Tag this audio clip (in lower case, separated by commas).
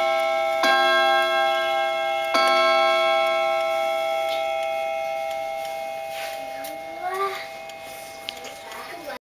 speech, tick-tock